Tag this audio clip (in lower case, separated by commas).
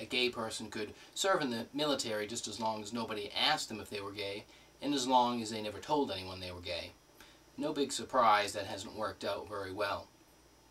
male speech, speech, monologue